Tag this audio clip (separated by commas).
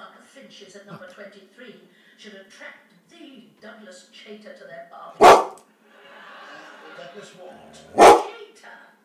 canids, Bark, Dog, Animal, Speech